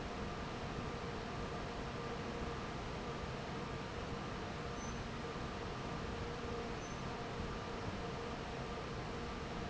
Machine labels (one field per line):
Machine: fan